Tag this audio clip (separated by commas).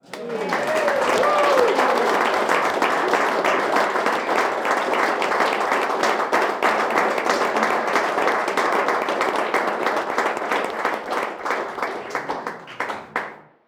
Human group actions, Applause